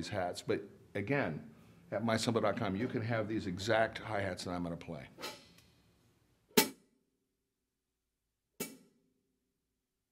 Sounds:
Music, Speech

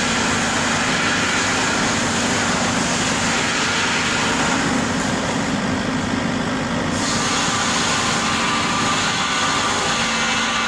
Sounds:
Heavy engine (low frequency), inside a large room or hall, Vehicle

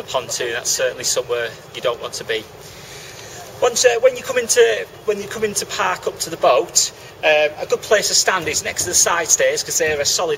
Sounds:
Speech

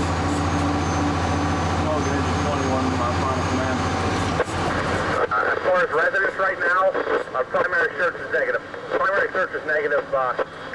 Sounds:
Speech, Vehicle, Engine

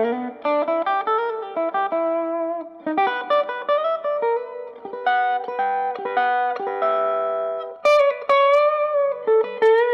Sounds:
Guitar, inside a small room, Electronic tuner, Musical instrument, Music, Plucked string instrument

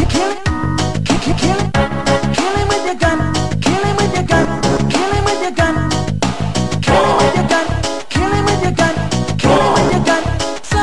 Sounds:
Music

